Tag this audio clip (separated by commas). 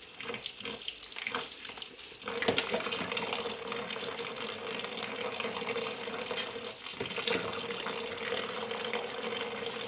Water, Water tap